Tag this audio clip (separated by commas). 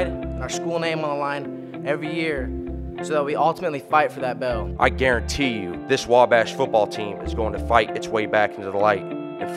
Music, Speech